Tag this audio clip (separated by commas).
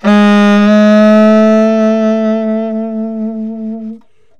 Musical instrument, Music, Wind instrument